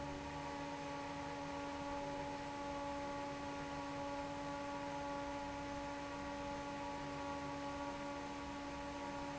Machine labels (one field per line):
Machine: fan